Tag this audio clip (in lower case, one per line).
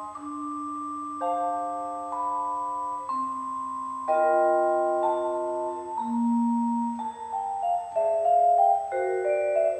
percussion
playing marimba
xylophone
musical instrument
music
vibraphone